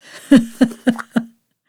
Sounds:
laughter, human voice, giggle

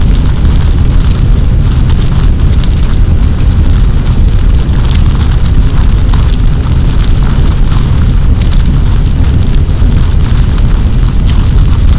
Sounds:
fire

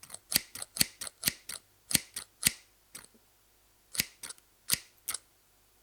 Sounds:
home sounds, scissors

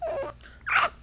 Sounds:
speech, human voice

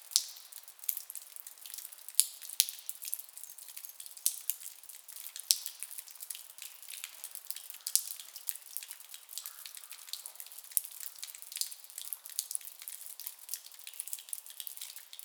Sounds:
liquid, drip

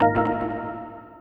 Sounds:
keyboard (musical), organ, musical instrument, music

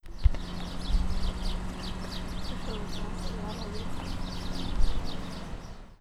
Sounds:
wild animals, animal, bird

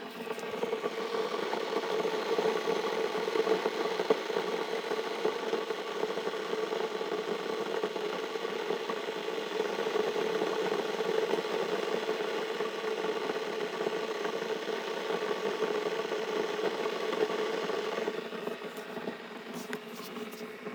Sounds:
liquid, water, boiling

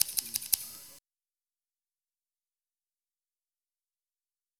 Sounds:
scissors, domestic sounds

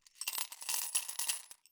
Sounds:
home sounds, coin (dropping), glass

